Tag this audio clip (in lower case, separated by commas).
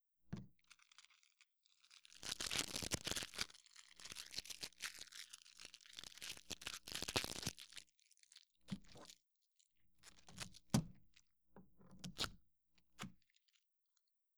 duct tape, home sounds